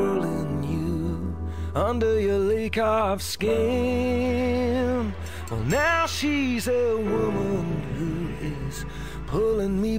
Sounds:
music

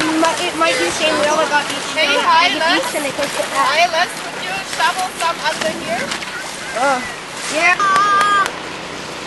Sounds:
outside, rural or natural
speech
slosh

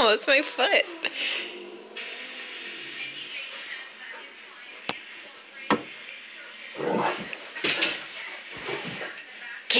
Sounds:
speech

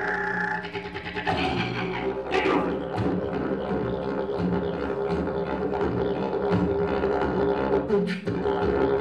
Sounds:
music
didgeridoo

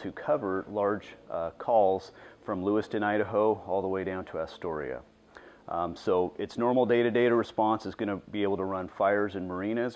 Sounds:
speech

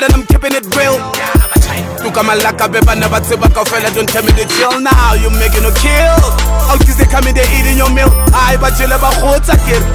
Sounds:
music
ska
soundtrack music

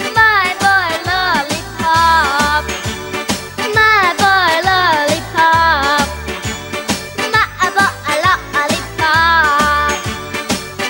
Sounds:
child singing

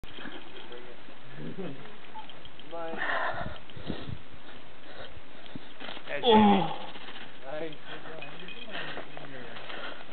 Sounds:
speech

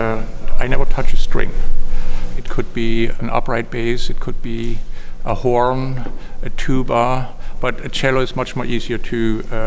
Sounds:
speech

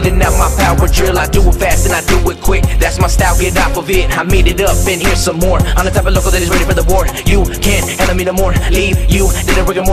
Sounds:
music

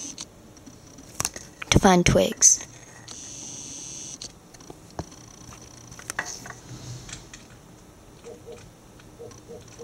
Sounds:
speech
bird

